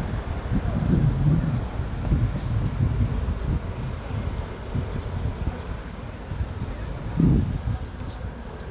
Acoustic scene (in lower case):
street